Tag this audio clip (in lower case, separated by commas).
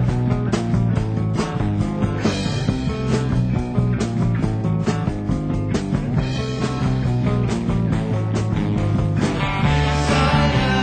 music